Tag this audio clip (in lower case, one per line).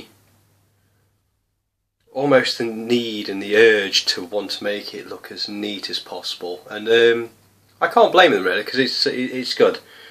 speech